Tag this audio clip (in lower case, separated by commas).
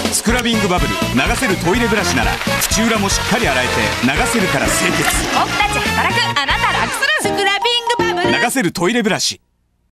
music, speech